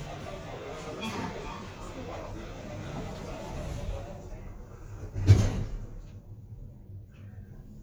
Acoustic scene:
elevator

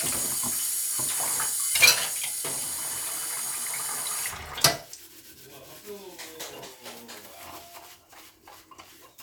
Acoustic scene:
kitchen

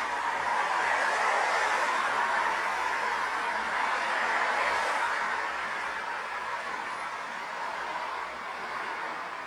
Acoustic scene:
street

